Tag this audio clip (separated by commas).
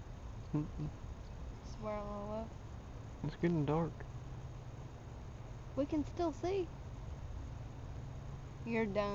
outside, rural or natural, Speech